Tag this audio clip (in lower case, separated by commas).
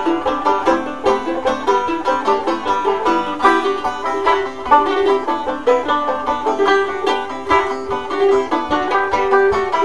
music, country, musical instrument, banjo, guitar, playing banjo